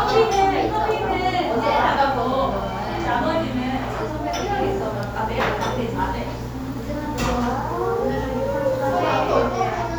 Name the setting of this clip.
cafe